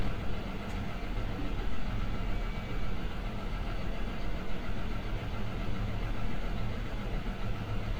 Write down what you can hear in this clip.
large-sounding engine